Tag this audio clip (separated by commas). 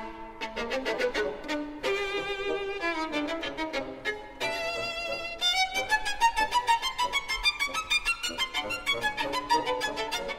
Music, Musical instrument, fiddle